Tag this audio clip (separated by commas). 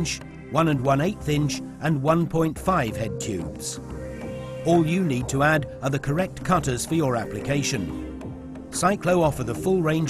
Music, Speech